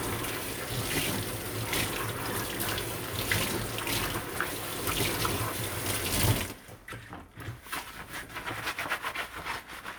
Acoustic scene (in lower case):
kitchen